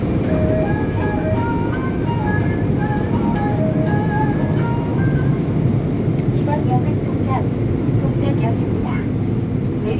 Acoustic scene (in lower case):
subway train